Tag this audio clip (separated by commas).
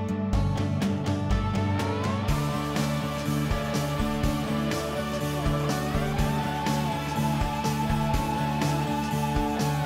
Music